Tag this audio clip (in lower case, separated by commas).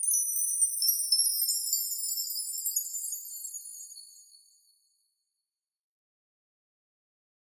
bell, chime